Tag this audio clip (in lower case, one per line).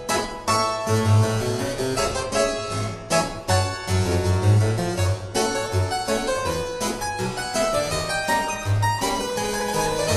playing harpsichord